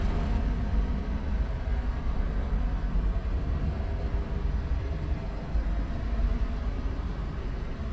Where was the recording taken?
in a car